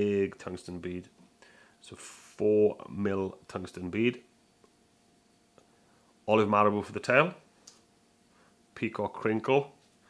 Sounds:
speech

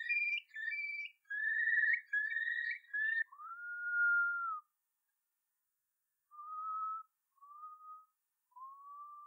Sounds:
outside, rural or natural, bird call, bird

